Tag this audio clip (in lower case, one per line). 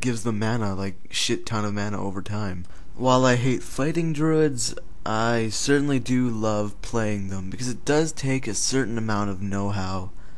speech
monologue